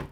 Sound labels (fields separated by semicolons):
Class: cupboard; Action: closing; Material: wooden